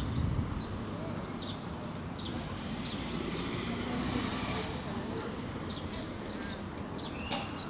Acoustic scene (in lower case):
residential area